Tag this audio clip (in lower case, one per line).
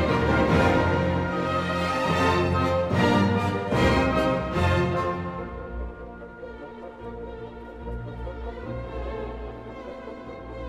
music